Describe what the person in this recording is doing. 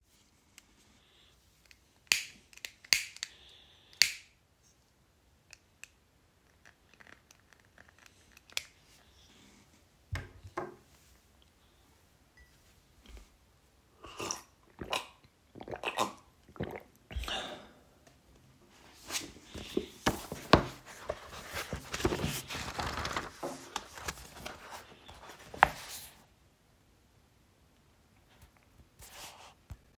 I lit a candle, took a sip of water and opened my book and started reading.